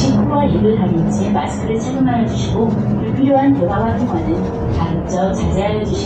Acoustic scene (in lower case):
bus